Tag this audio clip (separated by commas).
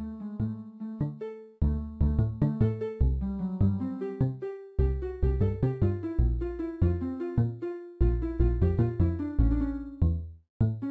Tender music, House music, Music